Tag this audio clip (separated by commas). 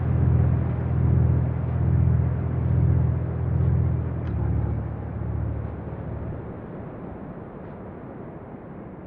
Music